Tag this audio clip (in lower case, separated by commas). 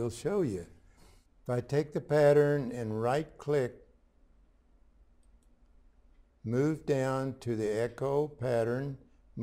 speech